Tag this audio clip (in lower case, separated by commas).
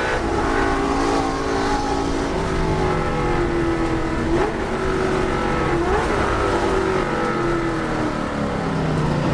car, motor vehicle (road), vehicle